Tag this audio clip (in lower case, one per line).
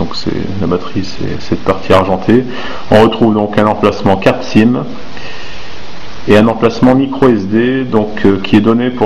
speech